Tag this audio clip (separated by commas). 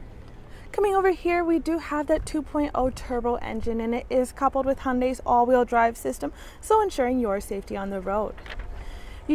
Speech